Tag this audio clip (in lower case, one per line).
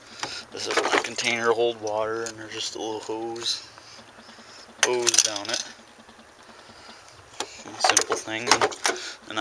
speech